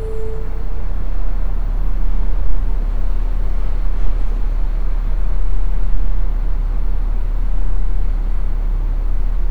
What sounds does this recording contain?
large-sounding engine